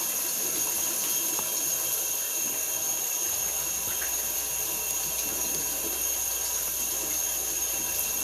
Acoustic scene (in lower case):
restroom